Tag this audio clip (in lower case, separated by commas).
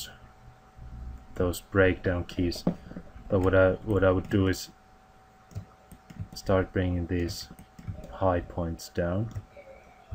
speech